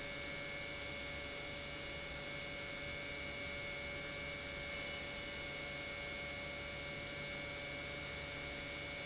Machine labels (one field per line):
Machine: pump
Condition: normal